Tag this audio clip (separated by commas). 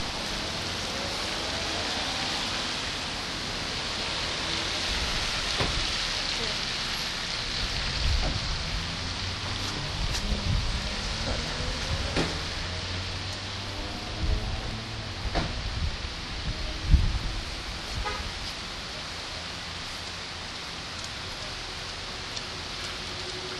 Rain, Water